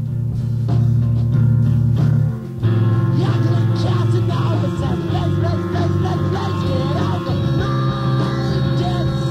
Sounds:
Music

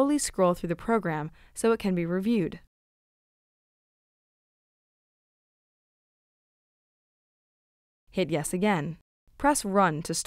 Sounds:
Silence, Speech

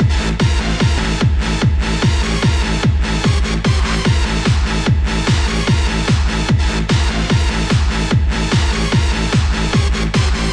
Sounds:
people shuffling

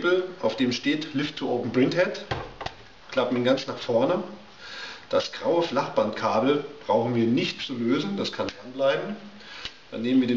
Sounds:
Speech

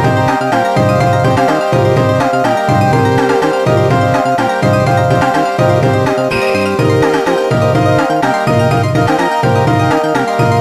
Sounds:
Music

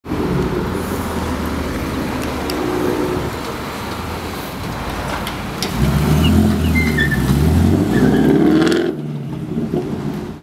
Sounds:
Car, Rustle, Vehicle, Race car, roadway noise

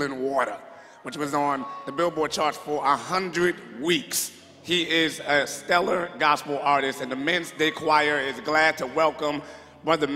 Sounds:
Speech

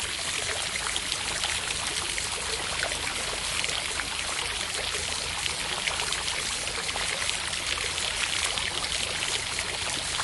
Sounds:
outside, rural or natural

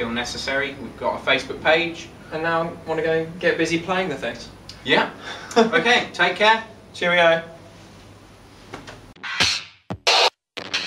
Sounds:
Musical instrument, Speech, Music

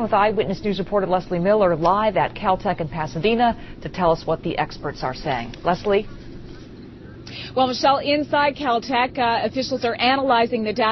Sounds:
Speech

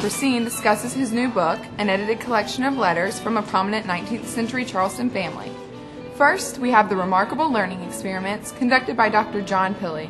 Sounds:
Speech, Music

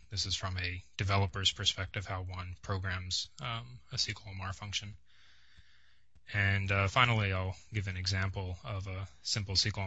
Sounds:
Speech

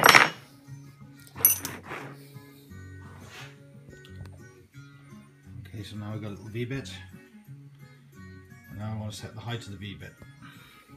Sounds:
Speech, Music

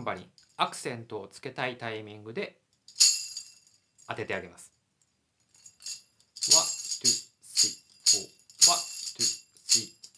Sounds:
playing tambourine

